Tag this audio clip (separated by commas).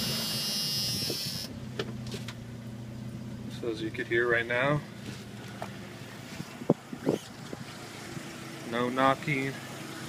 Car, Vehicle, Engine, Speech